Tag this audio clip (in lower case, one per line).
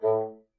musical instrument
music
wind instrument